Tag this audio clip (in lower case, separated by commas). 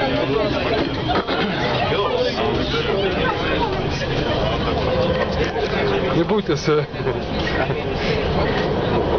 train wagon, metro, train, rail transport